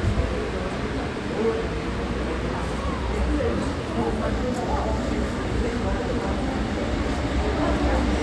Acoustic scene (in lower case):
subway station